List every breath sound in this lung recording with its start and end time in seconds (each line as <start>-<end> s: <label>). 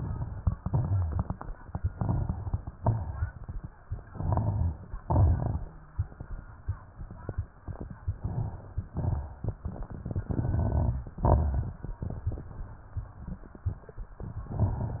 0.00-0.55 s: inhalation
0.00-0.55 s: crackles
0.56-1.41 s: exhalation
0.56-1.41 s: crackles
1.90-2.74 s: crackles
1.90-2.78 s: inhalation
2.75-3.63 s: exhalation
2.75-3.63 s: crackles
4.07-4.97 s: inhalation
4.07-4.97 s: crackles
5.00-5.76 s: exhalation
5.00-5.76 s: crackles
8.07-8.84 s: inhalation
8.07-8.84 s: crackles
8.85-9.62 s: exhalation
8.85-9.62 s: crackles
10.26-11.03 s: crackles
10.30-11.14 s: inhalation
11.19-11.96 s: exhalation
11.19-11.96 s: crackles
14.40-15.00 s: inhalation
14.40-15.00 s: crackles